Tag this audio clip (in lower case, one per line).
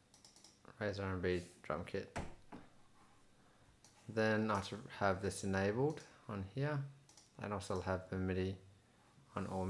speech
clicking